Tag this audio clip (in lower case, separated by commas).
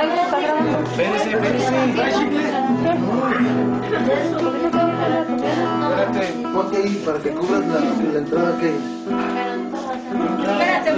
speech, acoustic guitar, guitar, plucked string instrument, strum, musical instrument, music